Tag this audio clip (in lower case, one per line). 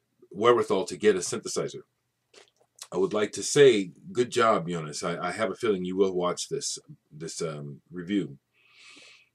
speech